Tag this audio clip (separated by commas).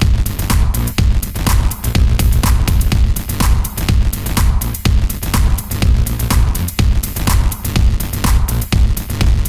Techno, Electronica, Music